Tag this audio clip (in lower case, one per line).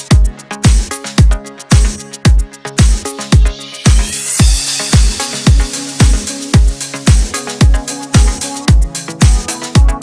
music